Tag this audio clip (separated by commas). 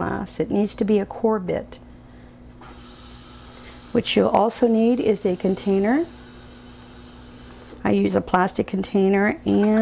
Speech